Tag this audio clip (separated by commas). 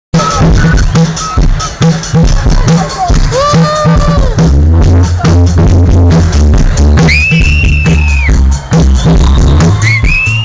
Music, Rock music, Independent music